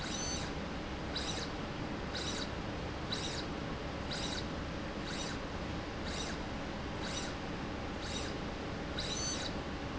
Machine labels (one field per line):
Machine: slide rail